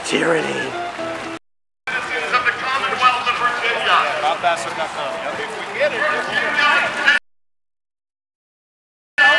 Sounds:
Crowd, Speech, outside, urban or man-made

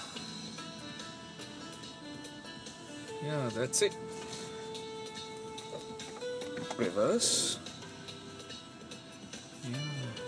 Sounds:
Music, Speech

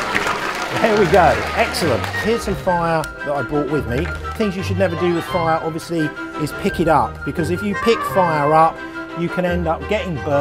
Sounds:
Speech, Music

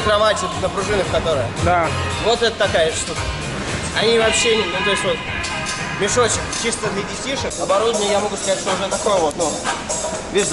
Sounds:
bouncing on trampoline

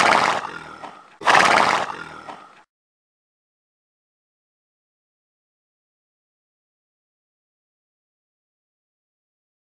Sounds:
horse neighing, whinny, Snort, Sound effect

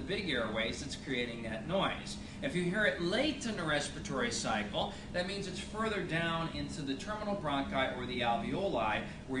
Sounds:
Speech

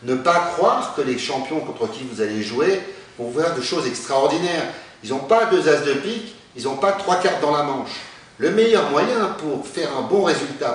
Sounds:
Speech

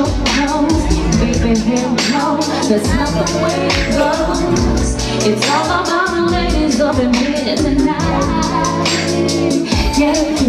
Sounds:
Music

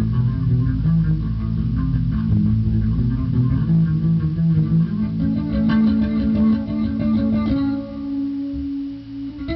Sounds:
Musical instrument, Guitar, Heavy metal, Plucked string instrument, Music, Electric guitar, Bass guitar, Rock music

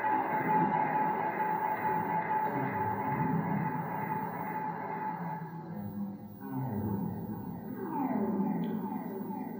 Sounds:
Cello, Music, Musical instrument

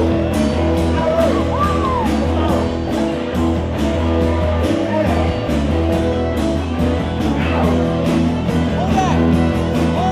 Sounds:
Music, Speech, Rock and roll

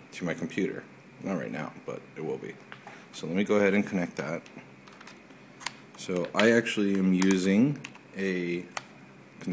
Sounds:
Speech

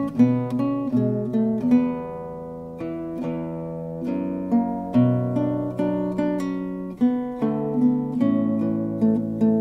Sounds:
Musical instrument, Guitar, Plucked string instrument, Strum, Music

